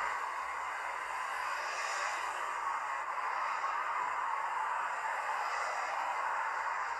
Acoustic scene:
street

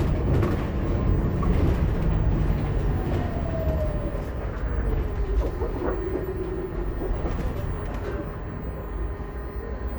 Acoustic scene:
bus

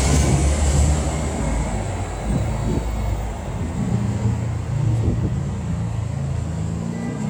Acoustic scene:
street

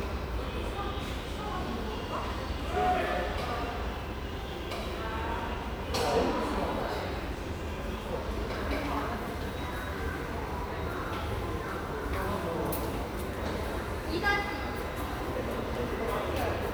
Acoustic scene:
subway station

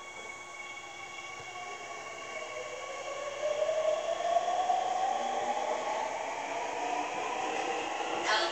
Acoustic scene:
subway train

